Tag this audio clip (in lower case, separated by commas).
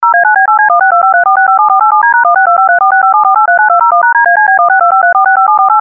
alarm, telephone